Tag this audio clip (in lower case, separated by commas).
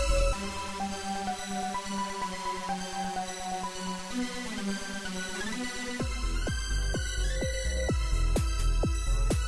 music, soundtrack music, exciting music